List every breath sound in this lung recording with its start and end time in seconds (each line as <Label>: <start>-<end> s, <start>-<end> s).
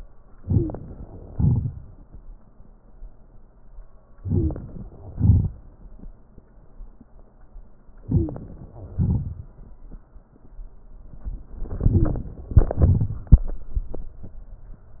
Inhalation: 0.40-0.74 s, 4.22-4.61 s, 8.04-8.43 s
Exhalation: 1.34-1.69 s, 5.14-5.53 s, 8.94-9.32 s
Stridor: 0.45-0.74 s, 4.26-4.55 s, 8.07-8.36 s, 11.93-12.22 s